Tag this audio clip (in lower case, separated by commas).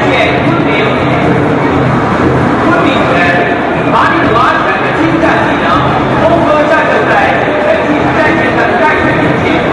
speech